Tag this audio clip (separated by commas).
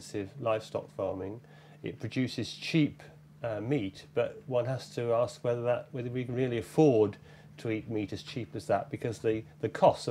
Speech